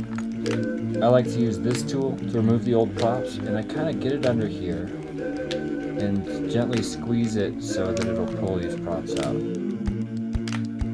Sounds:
Music, Speech

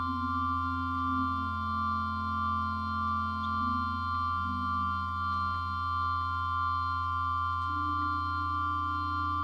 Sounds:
playing piano, Music, Organ, Musical instrument, Keyboard (musical), Piano

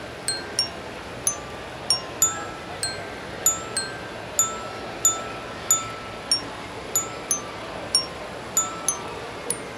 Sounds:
playing glockenspiel

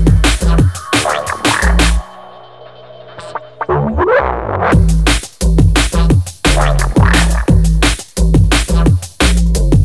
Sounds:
Music, Drum and bass, Electronic music

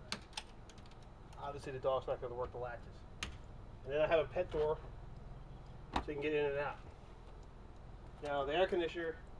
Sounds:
Door, Speech

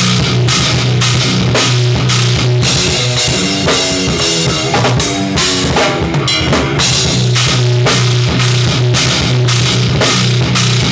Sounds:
Music, Rock music, Heavy metal

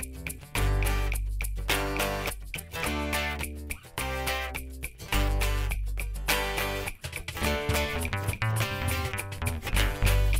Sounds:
Music

